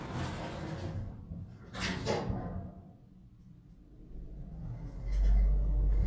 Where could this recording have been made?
in an elevator